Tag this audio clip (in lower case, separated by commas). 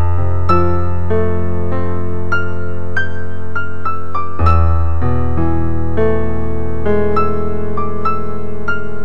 electric piano, music